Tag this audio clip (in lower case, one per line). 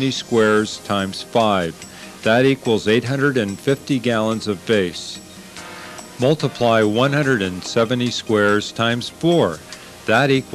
spray
speech
music